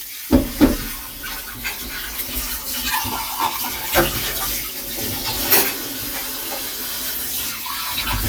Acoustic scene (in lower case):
kitchen